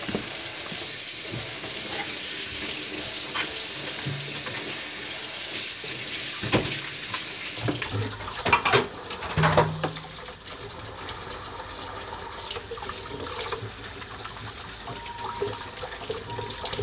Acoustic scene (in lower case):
kitchen